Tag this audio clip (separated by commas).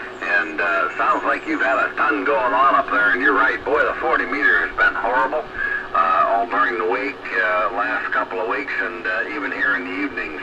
Speech